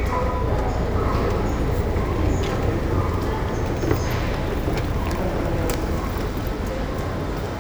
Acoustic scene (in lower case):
subway station